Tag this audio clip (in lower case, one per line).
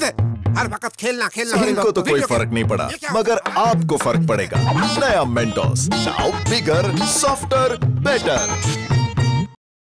speech
music